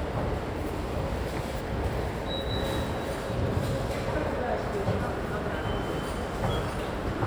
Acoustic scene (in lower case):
subway station